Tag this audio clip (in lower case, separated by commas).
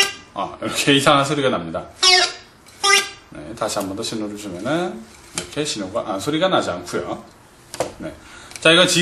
speech